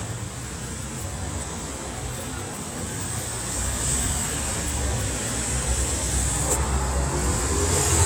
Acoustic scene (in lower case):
street